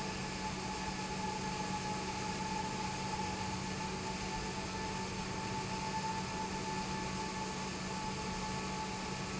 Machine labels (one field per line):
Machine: pump